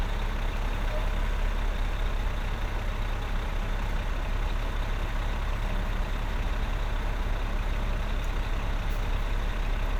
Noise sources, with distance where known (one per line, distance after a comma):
engine of unclear size, near